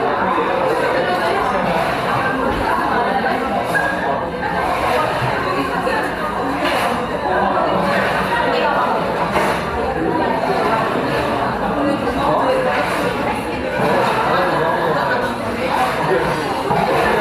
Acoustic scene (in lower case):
cafe